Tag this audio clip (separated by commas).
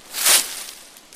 Wind